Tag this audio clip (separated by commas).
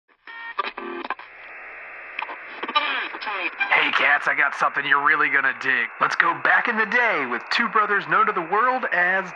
Radio, Speech